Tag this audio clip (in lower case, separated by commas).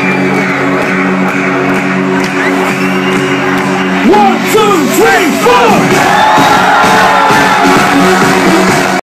music, speech